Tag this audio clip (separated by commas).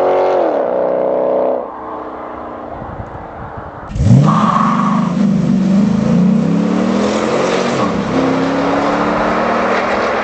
outside, urban or man-made